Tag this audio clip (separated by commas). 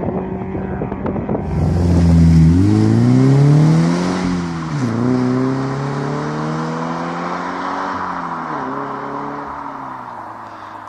vroom, Vehicle, Rustle, Car